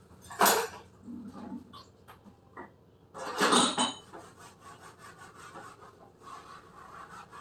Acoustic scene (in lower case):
kitchen